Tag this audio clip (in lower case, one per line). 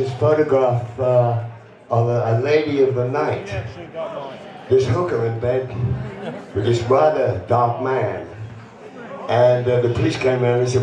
speech